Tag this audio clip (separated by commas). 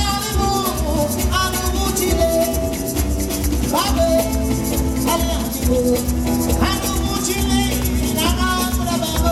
Music